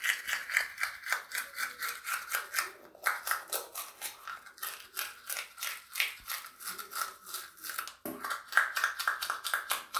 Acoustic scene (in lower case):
restroom